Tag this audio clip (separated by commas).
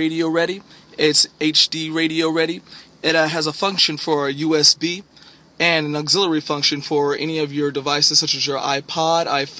Speech